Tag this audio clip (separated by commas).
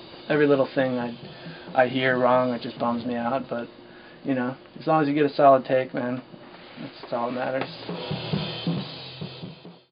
Speech, Music